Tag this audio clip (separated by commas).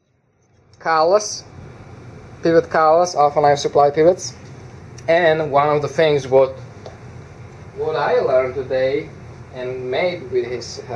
inside a small room, Speech